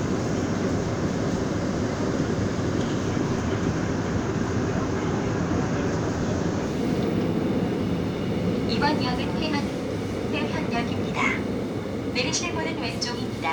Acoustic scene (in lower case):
subway train